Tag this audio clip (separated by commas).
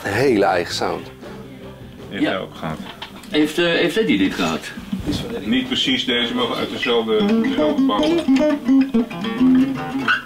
Musical instrument, Speech, Guitar, Music, Acoustic guitar